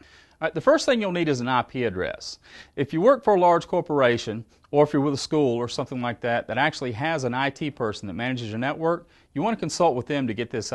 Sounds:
Speech

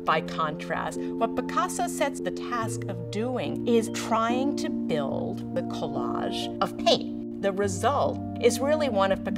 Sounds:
Music, Musical instrument, Speech, Plucked string instrument, Guitar, Strum

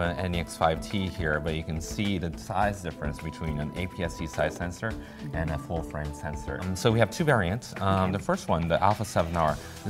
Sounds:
Music, Speech

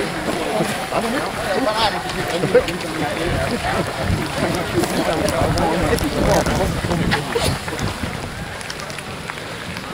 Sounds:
Run, Speech

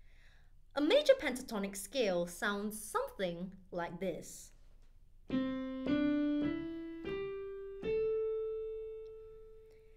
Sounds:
Music, Speech

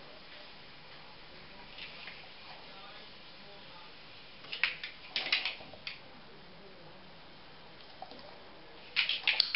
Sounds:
Speech

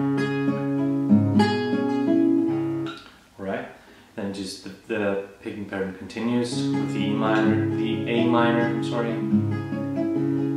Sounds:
Music, Musical instrument, Speech, Plucked string instrument, Guitar

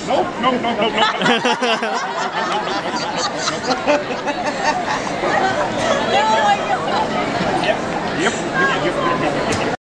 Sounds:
Speech

